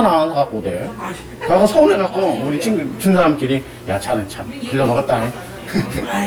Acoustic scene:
crowded indoor space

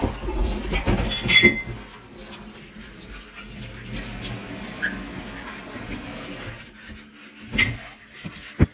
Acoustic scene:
kitchen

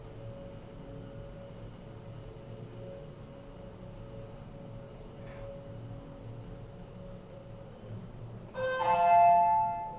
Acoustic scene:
elevator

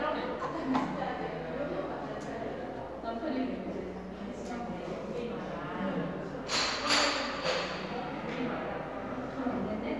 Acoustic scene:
cafe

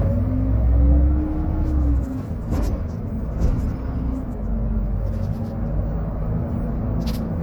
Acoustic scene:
bus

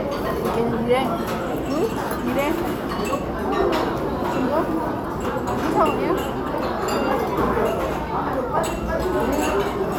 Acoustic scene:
restaurant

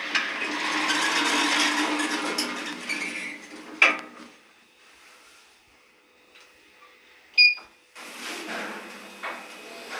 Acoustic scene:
elevator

